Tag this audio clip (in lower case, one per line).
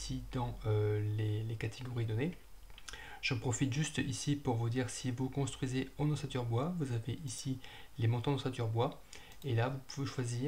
speech